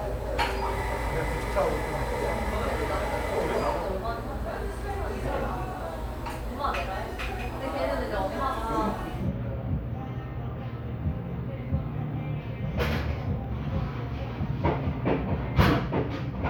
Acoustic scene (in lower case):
cafe